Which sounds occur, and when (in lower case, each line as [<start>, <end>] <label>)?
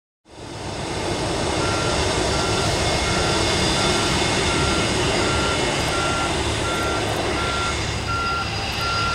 [0.23, 9.14] fixed-wing aircraft
[0.23, 9.14] wind
[1.58, 1.92] reversing beeps
[2.31, 2.64] reversing beeps
[2.98, 3.34] reversing beeps
[3.72, 4.06] reversing beeps
[4.46, 4.79] reversing beeps
[5.20, 5.57] reversing beeps
[5.91, 6.26] reversing beeps
[6.63, 6.97] reversing beeps
[7.37, 7.72] reversing beeps
[8.05, 8.44] reversing beeps
[8.77, 9.14] reversing beeps